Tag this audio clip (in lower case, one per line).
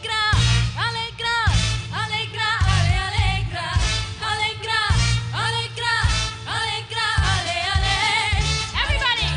music
music of asia
speech